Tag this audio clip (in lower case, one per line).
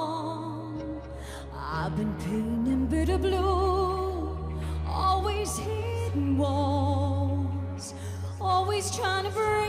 music